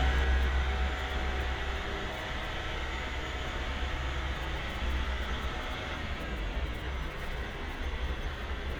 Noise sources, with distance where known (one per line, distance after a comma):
large-sounding engine, near